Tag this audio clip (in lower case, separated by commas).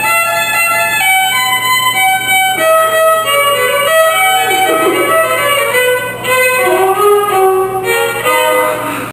music, fiddle, musical instrument